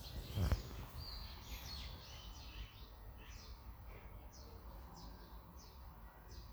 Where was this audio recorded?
in a park